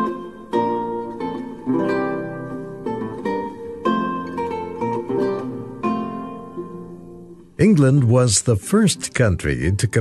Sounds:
Pizzicato, Zither

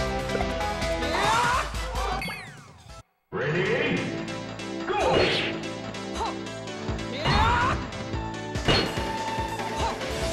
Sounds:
Music

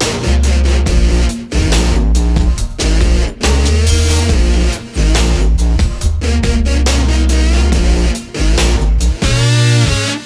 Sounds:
Music, Dubstep

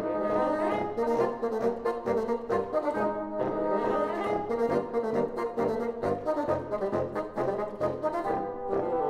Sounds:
playing bassoon

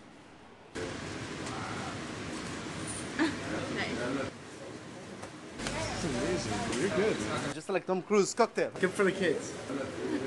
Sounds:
Speech

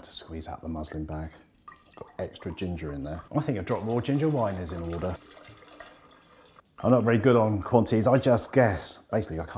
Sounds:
Drip, Speech

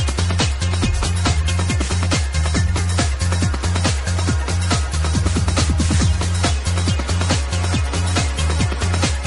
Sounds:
Music

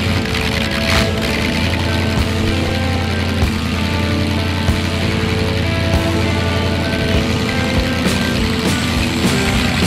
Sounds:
Music, Car, Vehicle

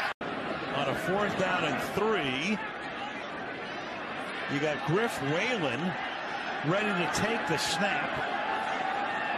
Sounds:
Speech

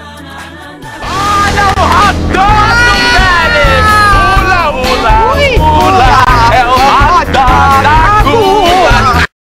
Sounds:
Speech, Music

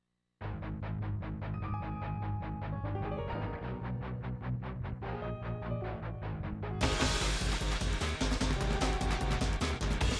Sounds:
Music

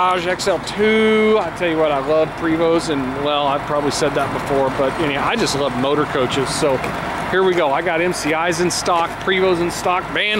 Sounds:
Vehicle, Speech

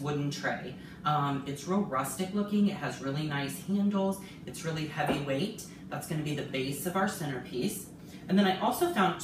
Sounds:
Speech

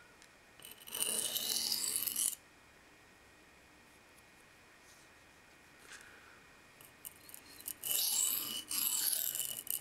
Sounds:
sharpen knife

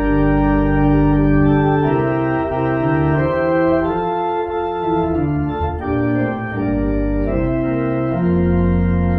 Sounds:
playing electronic organ

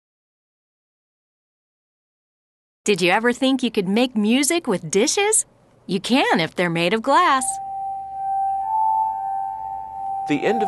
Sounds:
Harmonica, Musical instrument, Music

